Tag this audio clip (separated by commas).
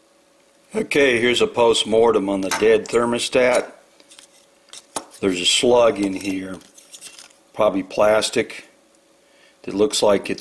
inside a small room, Speech